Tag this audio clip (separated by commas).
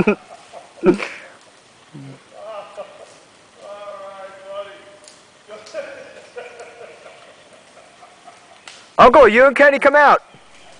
Speech